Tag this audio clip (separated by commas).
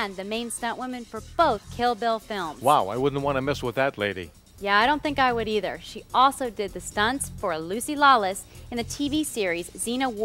Speech, Music